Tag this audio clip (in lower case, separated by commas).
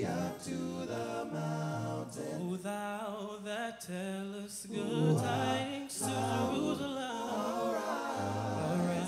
choir, male singing